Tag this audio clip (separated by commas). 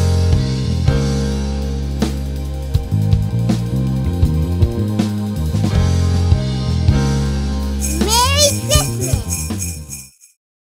playing bass guitar